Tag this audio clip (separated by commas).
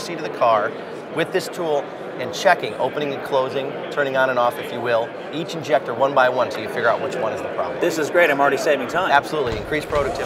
Speech